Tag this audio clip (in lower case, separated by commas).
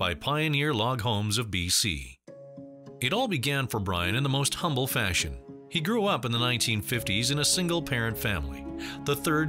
music, speech